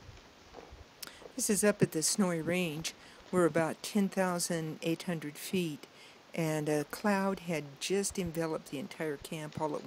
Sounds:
speech

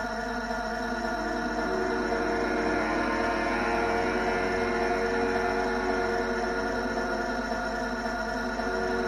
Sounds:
music
inside a large room or hall

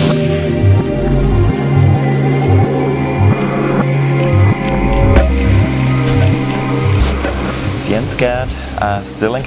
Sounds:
music
speech

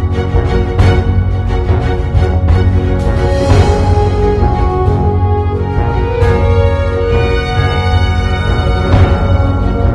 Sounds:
theme music

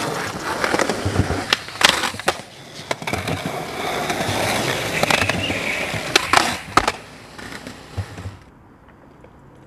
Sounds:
skateboard
skateboarding

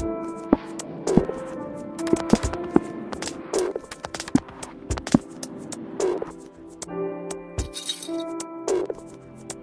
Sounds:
background music
music

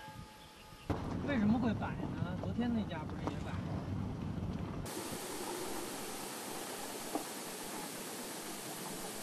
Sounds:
rustle

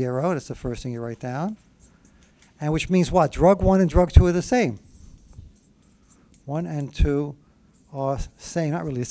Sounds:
writing

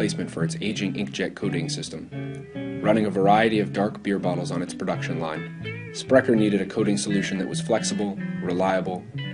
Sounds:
music
speech

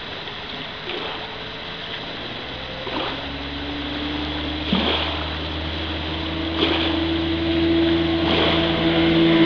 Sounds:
vehicle
motorboat
speedboat

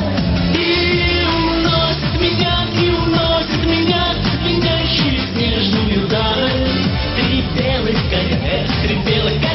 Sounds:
music

